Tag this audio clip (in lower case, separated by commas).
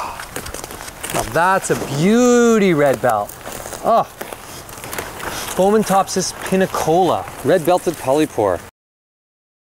speech